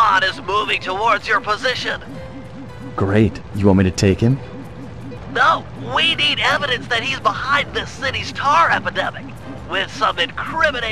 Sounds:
speech
music

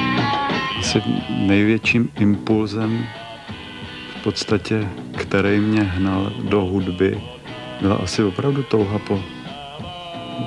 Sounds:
speech
music
blues

